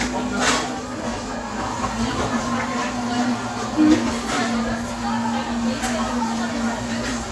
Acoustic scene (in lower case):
cafe